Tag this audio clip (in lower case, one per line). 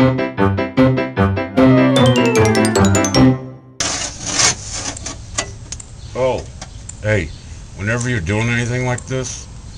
speech
music